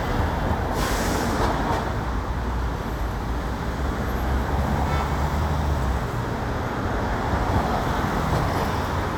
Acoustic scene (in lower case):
street